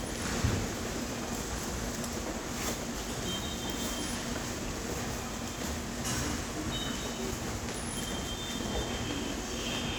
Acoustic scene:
subway station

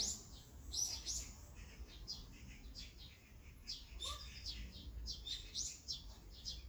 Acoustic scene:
park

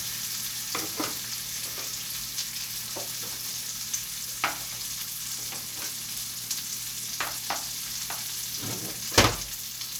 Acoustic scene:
kitchen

